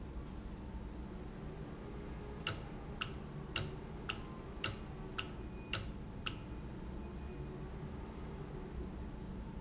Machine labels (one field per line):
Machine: valve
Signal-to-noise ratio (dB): 0 dB